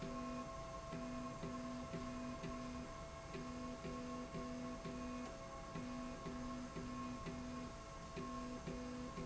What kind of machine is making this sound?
slide rail